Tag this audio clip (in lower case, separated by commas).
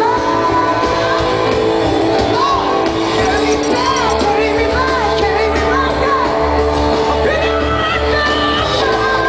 rock music, music, shout